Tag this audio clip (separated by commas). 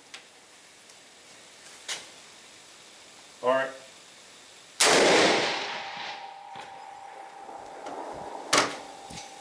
Speech